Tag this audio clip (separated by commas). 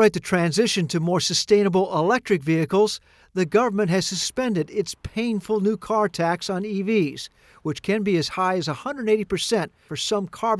Speech